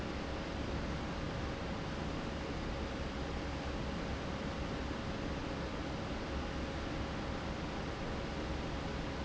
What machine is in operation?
fan